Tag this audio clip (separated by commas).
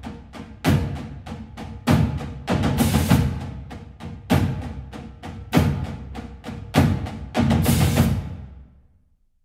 Music